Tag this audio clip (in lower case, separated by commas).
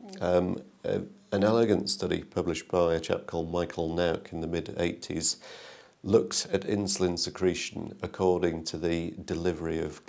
speech